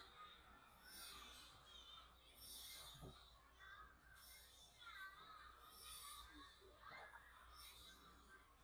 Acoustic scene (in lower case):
residential area